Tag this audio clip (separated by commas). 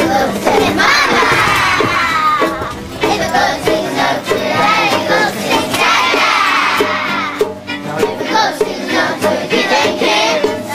Music